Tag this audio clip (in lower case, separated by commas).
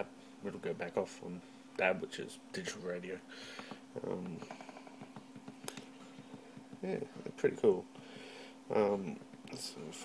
speech